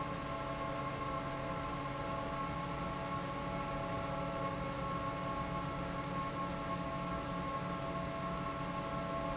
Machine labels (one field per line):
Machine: fan